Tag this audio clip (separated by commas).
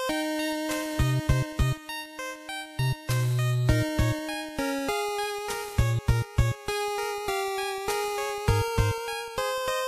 Music, Theme music